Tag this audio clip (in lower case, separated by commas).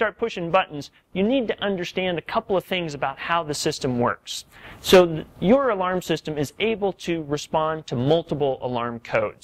speech